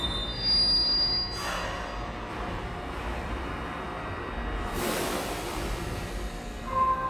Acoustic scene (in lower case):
subway station